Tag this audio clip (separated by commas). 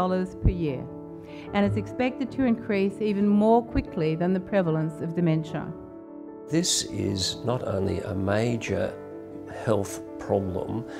Music, Speech